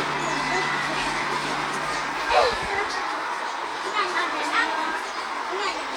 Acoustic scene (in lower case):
park